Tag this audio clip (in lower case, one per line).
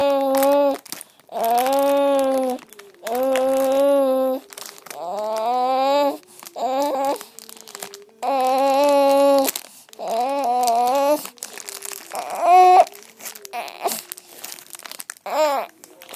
sobbing
human voice
speech